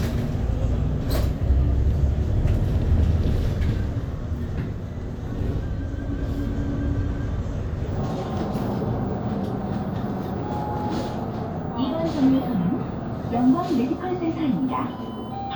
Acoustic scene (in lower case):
bus